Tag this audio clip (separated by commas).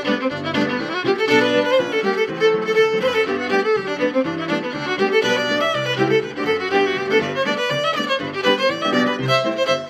Musical instrument, Music, fiddle